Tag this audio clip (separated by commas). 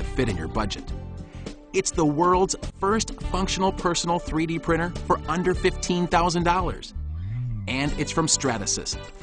Speech, Music